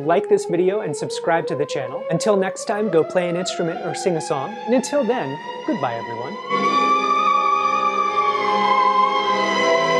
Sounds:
playing theremin

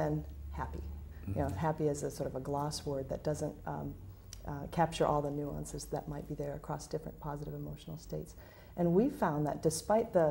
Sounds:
speech, inside a small room

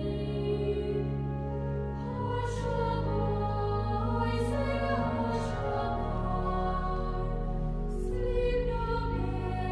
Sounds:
lullaby, music

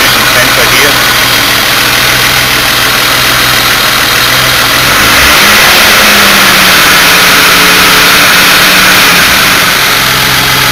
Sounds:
vehicle, vibration, engine, speech, car, idling

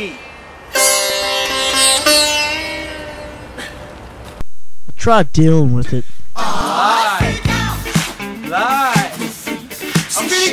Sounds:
sitar

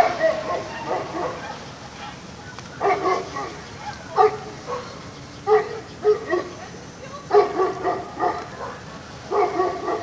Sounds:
speech

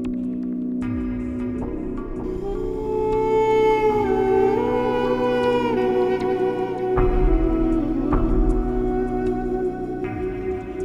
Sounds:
new-age music, ambient music

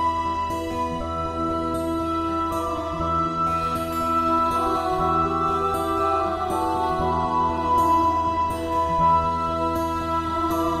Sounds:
harpsichord

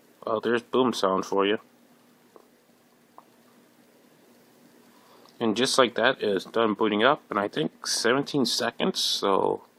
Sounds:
inside a small room, speech

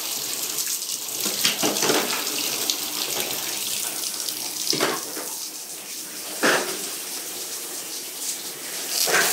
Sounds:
water, water tap, bathtub (filling or washing)

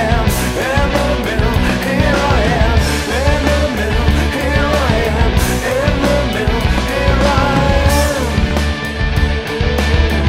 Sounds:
music, rock music

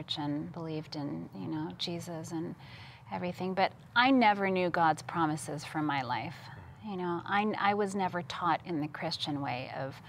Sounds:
inside a small room, speech

